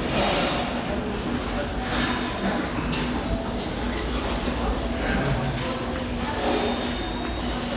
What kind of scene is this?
restaurant